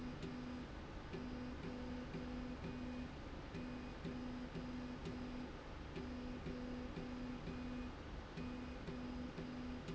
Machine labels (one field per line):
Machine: slide rail